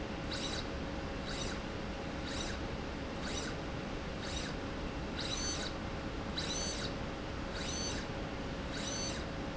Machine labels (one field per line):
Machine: slide rail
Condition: abnormal